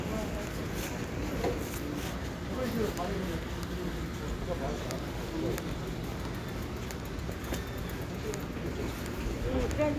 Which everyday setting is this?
residential area